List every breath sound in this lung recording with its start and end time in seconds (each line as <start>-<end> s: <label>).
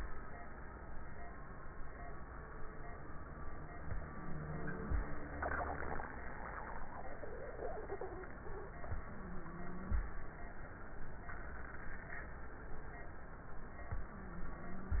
3.85-5.00 s: inhalation
4.03-4.87 s: wheeze
8.90-10.05 s: inhalation
9.10-9.93 s: wheeze
13.95-15.00 s: inhalation
14.16-15.00 s: wheeze